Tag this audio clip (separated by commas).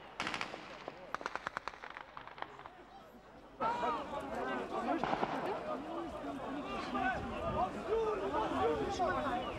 outside, urban or man-made, Speech